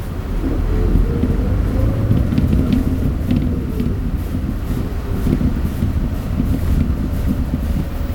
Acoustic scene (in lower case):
bus